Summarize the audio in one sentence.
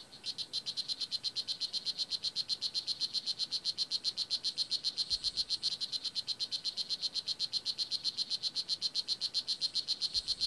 A frog croaks intensively